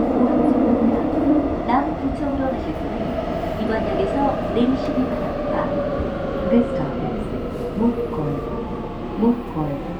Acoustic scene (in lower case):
subway train